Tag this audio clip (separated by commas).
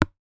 Tap